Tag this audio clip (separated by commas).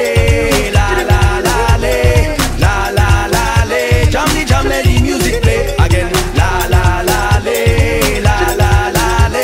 Music, Singing, Music of Africa